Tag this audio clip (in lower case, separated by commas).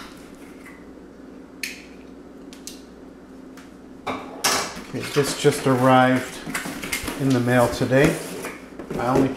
speech